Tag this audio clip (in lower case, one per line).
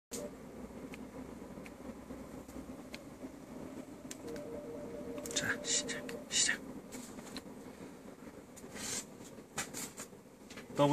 electric grinder grinding